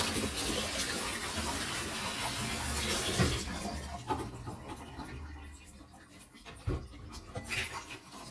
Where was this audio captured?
in a kitchen